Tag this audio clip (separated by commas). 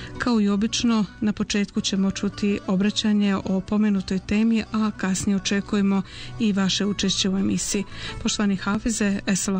Music, Speech